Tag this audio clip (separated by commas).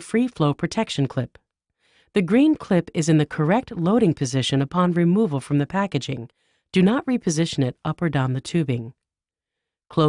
Speech